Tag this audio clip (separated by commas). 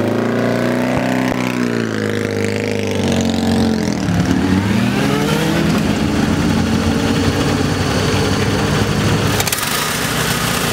Vehicle, Vibration, outside, urban or man-made, Engine, Motorcycle, Idling